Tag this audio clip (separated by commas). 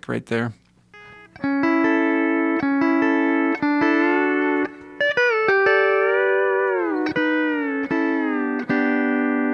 playing steel guitar